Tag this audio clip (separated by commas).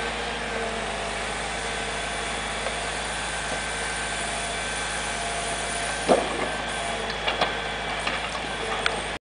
Vehicle